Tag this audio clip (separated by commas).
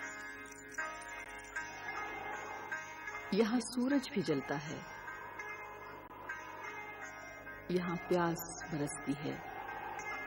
Music, Speech